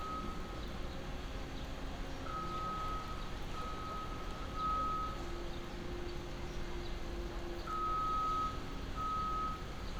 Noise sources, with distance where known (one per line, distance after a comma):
reverse beeper, far